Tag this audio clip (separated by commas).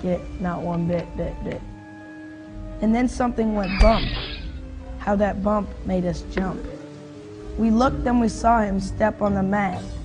Speech, Music